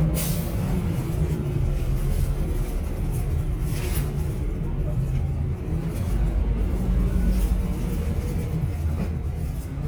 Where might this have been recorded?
on a bus